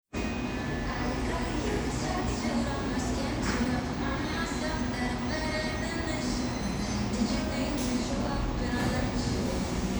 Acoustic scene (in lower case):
cafe